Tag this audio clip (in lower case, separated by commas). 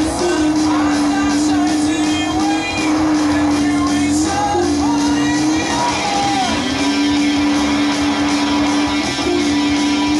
car, music